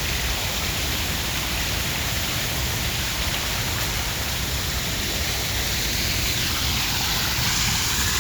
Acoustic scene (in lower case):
park